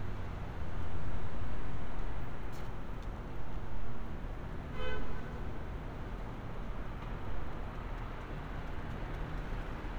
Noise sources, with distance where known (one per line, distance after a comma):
car horn, near